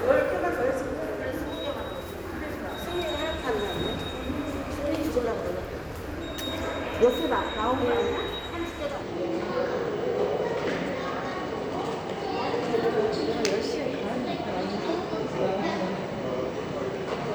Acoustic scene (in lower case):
subway station